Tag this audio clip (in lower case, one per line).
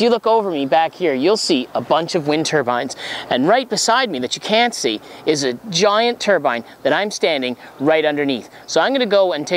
speech